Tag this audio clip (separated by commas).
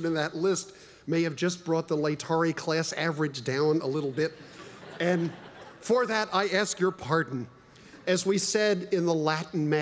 monologue, Speech, man speaking